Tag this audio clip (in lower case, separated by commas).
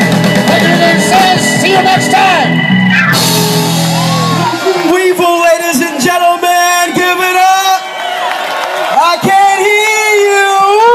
speech, outside, urban or man-made, music